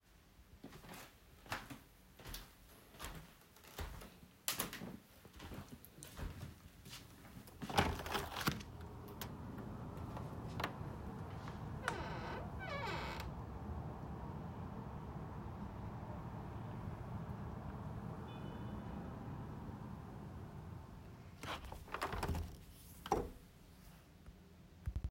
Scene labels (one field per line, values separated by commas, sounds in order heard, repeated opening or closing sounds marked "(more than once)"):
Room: bedroom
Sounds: footsteps, window (more than once), door